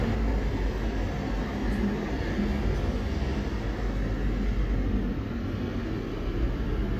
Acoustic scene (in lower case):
street